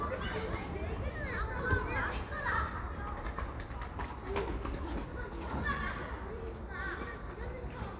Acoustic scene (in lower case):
residential area